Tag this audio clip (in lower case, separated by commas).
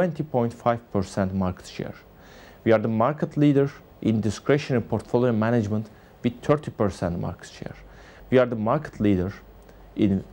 speech